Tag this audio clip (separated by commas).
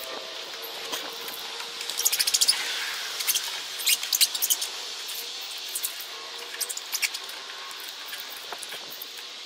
outside, rural or natural